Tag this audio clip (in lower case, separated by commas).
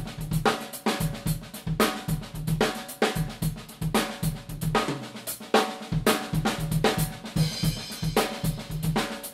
drum kit, snare drum, bass drum, rimshot, percussion, drum